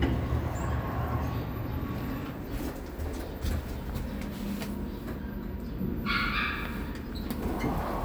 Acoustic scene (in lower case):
elevator